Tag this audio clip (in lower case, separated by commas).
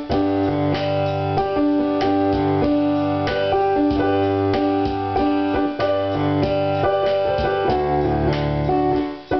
music